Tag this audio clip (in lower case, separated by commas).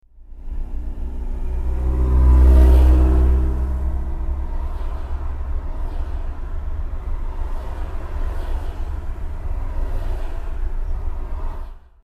truck, motor vehicle (road), vehicle